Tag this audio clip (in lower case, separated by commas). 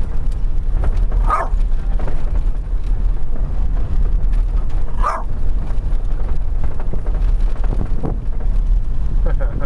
bow-wow